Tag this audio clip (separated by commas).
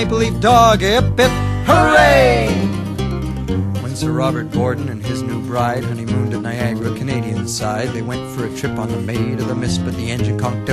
Music